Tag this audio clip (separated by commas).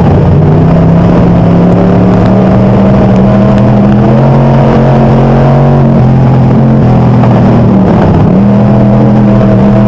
Motor vehicle (road), Vehicle, Car